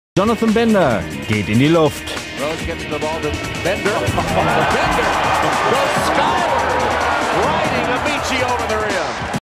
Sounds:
speech, music

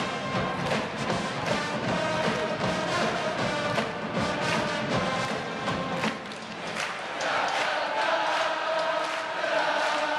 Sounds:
music, chant

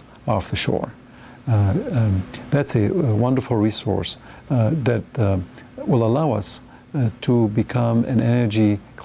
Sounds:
speech

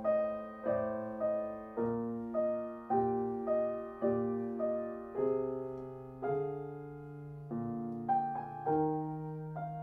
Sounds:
classical music, music, musical instrument, piano, keyboard (musical)

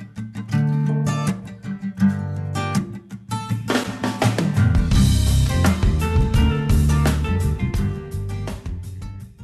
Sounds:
music

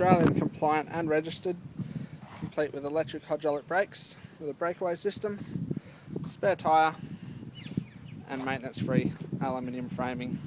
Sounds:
speech

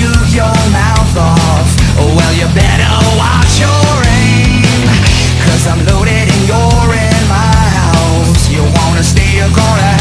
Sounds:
music

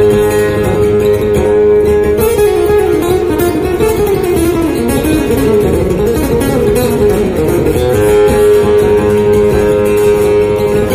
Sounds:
acoustic guitar, plucked string instrument, musical instrument, strum, guitar, music

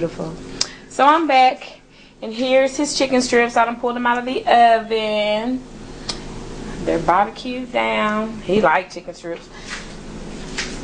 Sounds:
speech

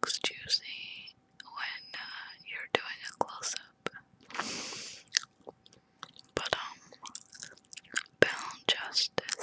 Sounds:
mastication, people whispering, whispering

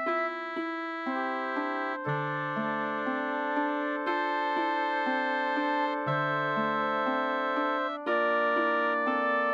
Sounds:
music

